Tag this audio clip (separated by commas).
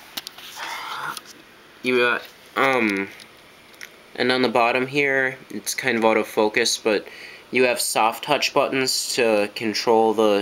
Speech